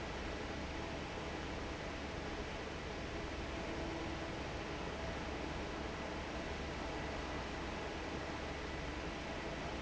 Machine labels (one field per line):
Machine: fan